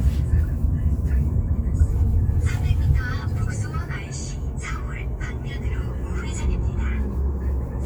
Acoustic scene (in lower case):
car